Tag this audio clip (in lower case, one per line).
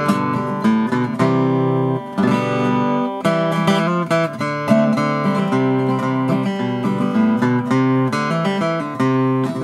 guitar
plucked string instrument
strum
music
musical instrument